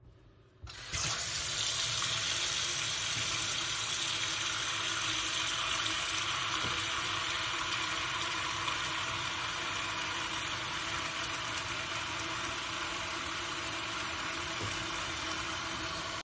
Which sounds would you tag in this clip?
running water